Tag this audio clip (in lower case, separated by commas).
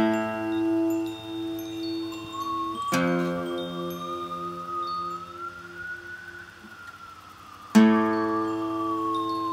music, plucked string instrument, musical instrument, acoustic guitar, strum, guitar